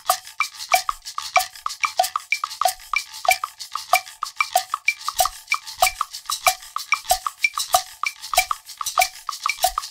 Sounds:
playing guiro

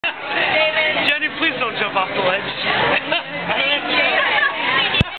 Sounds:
Speech

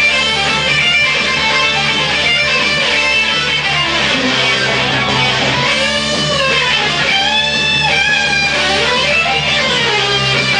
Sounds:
Musical instrument, Electric guitar, Music, Guitar

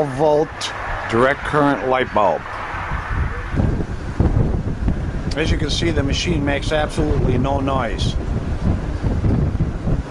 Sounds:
Wind, Speech

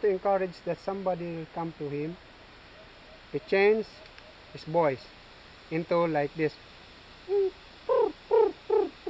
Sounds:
Speech

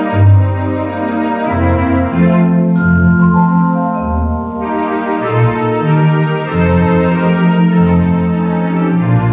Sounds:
Organ, Music, Piano, Musical instrument, Keyboard (musical), Electric piano, playing piano

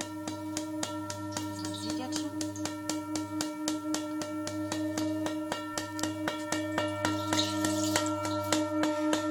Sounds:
singing bowl

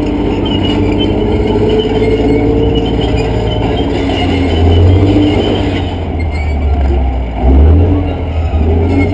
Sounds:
outside, urban or man-made, Vehicle

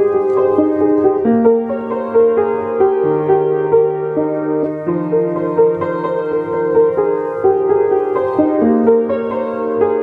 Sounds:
Music

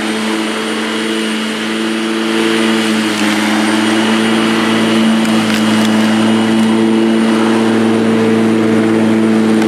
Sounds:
lawn mowing

